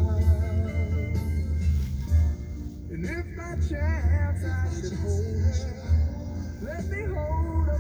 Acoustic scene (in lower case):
car